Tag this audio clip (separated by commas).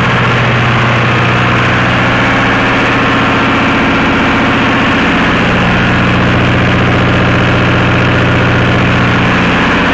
Heavy engine (low frequency), Idling, Engine